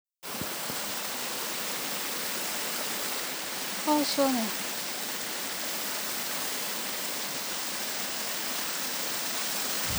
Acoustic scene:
park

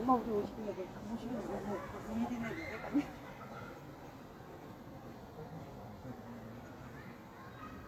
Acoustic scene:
park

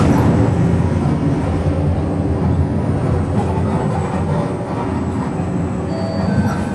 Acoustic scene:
bus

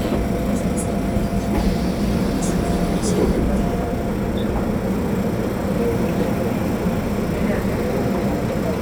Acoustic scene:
subway train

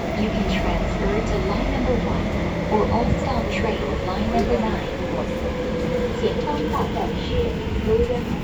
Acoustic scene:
subway train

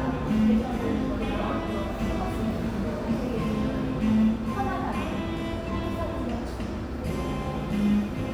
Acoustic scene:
cafe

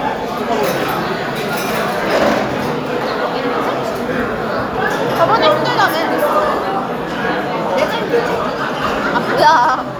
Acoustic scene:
restaurant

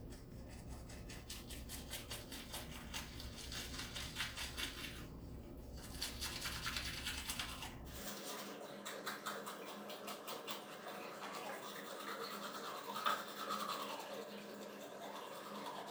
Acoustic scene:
restroom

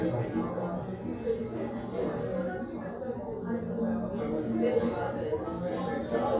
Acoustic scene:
crowded indoor space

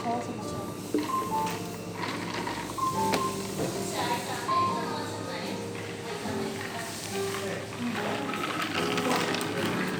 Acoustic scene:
cafe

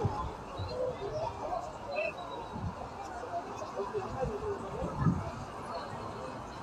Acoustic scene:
park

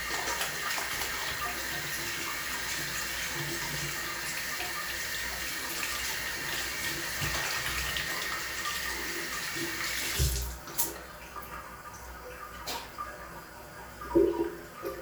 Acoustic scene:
restroom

